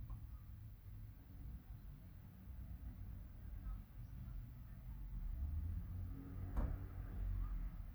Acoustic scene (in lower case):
residential area